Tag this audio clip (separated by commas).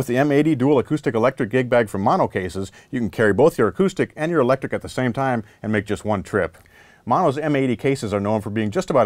Speech